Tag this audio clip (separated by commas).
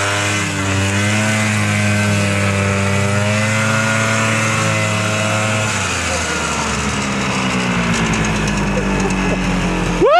driving snowmobile